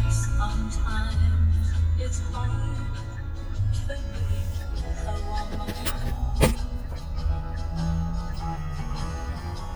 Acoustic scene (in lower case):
car